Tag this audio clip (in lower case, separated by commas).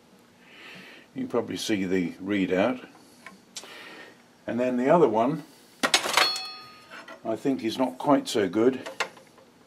tools, inside a small room, speech